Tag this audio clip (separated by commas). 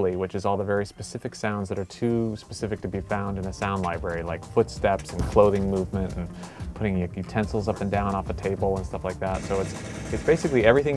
Music, Speech